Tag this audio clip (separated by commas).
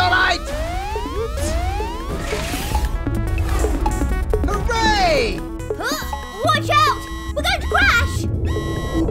Speech, Music